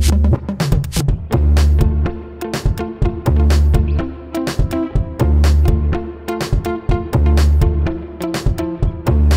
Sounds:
Music

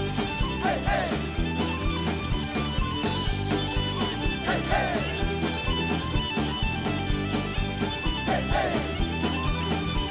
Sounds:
Music, Rhythm and blues

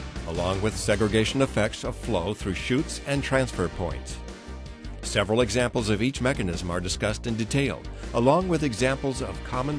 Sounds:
Speech, Music

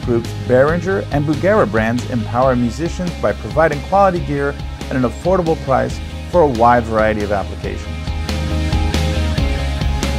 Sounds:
Music, Speech

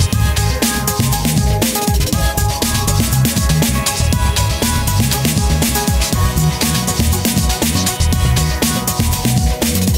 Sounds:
Drum and bass, Music

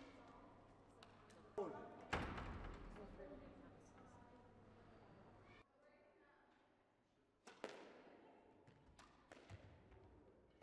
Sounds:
playing squash

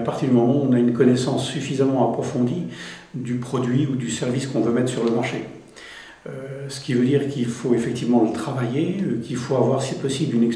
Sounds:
Speech

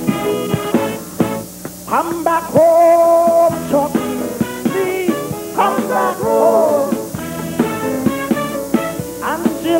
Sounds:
Music

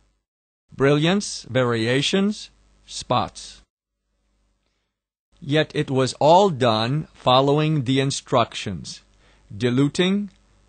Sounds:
Speech

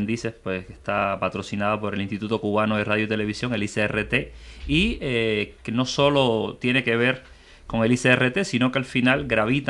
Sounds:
Speech

